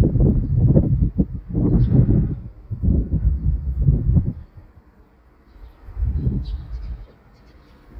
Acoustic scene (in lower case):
residential area